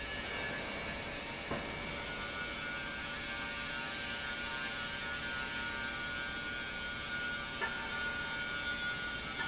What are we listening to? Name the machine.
pump